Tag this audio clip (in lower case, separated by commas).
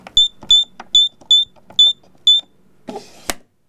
typing, home sounds